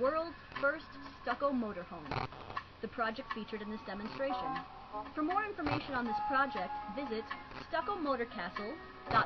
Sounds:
Music, Speech

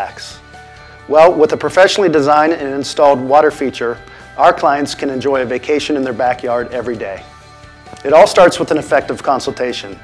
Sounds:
Music, Speech

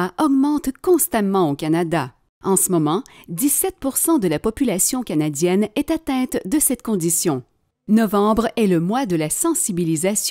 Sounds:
Speech

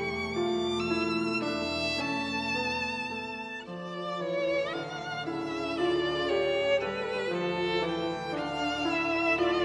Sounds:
Orchestra, fiddle, Musical instrument, Music

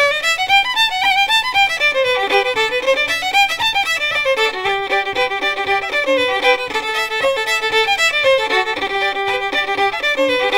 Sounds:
Violin, fiddle, Musical instrument, Music

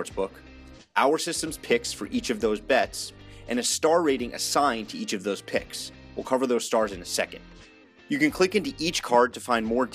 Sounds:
Music, Speech

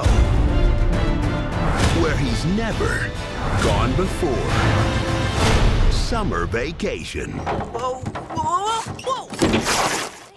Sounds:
Speech, Music

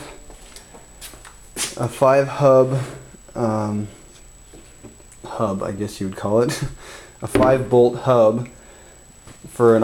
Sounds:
Speech

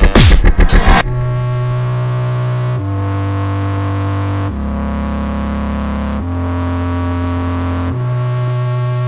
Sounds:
Dubstep, Music, Electronic music

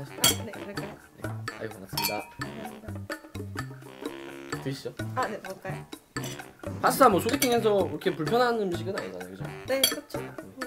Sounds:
eating with cutlery

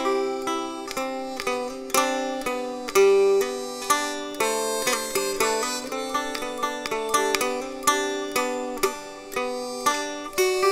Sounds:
Mandolin, Music

